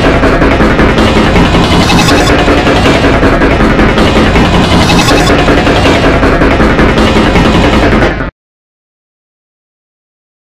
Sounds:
music

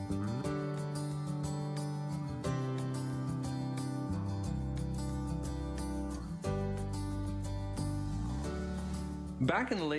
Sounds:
man speaking
music
monologue
speech

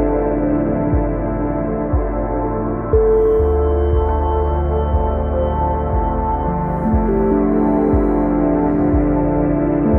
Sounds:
ambient music
music

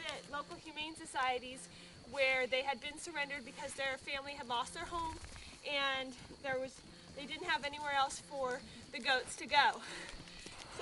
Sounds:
speech

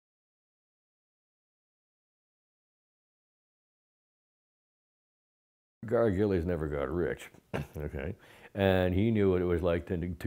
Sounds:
speech

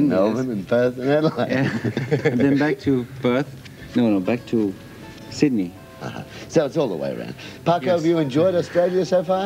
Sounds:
music
speech

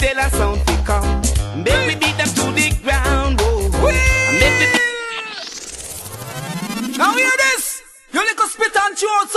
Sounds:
music
speech

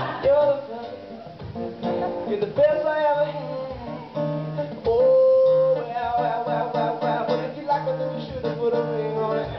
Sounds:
music

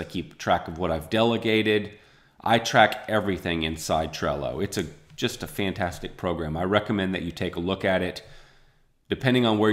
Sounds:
speech

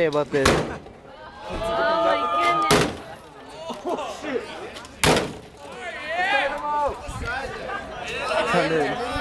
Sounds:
speech

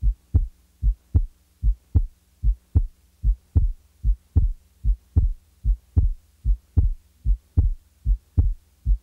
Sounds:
heartbeat

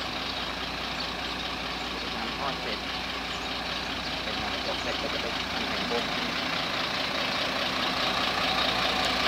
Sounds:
speech

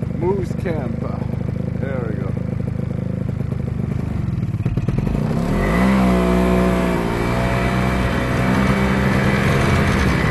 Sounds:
driving snowmobile

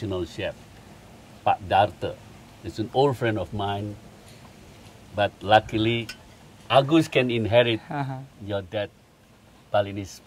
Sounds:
speech

